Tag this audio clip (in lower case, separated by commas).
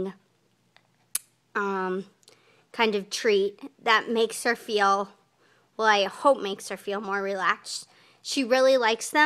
speech